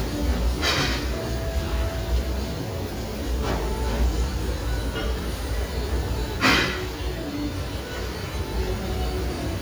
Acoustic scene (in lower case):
restaurant